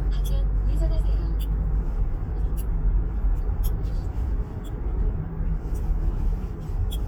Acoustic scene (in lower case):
car